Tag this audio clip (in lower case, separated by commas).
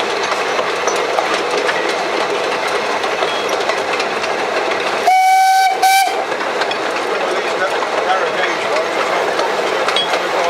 train, rail transport, speech, train whistling, train whistle, vehicle